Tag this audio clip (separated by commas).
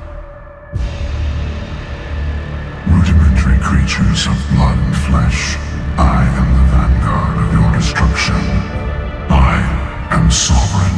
Background music, Music, Speech